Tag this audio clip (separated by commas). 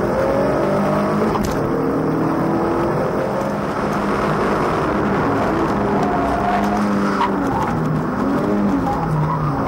Vehicle, Motor vehicle (road), Race car, Car